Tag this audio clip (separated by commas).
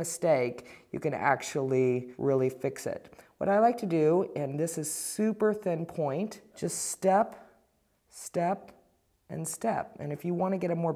Speech